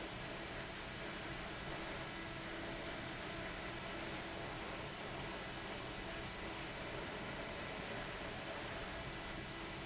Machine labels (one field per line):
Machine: fan